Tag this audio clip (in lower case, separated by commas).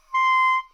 musical instrument, music, wind instrument